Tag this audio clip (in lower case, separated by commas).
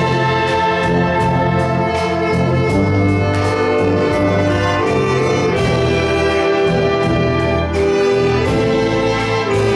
orchestra, classical music, music